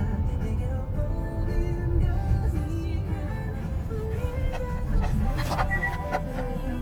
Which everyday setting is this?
car